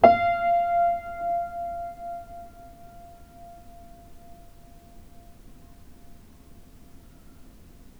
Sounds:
piano, keyboard (musical), musical instrument, music

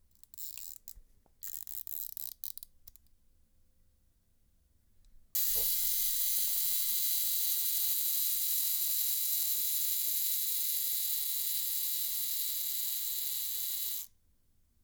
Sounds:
mechanisms, camera

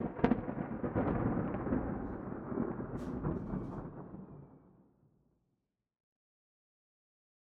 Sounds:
thunderstorm, thunder

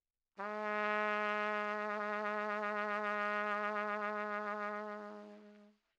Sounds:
musical instrument, music, brass instrument, trumpet

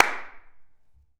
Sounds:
hands, clapping

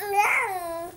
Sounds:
human voice, speech

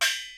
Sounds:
percussion, music, musical instrument, gong

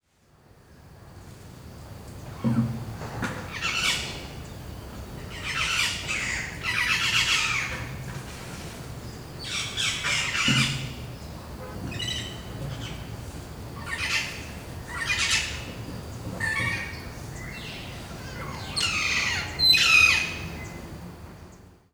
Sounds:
animal, bird, wild animals

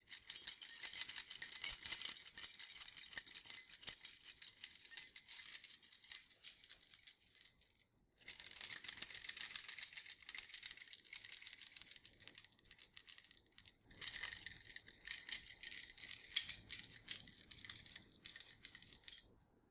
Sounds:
keys jangling, home sounds

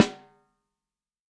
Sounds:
drum, snare drum, percussion, music, musical instrument

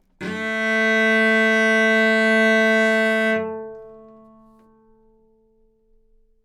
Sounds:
musical instrument, bowed string instrument, music

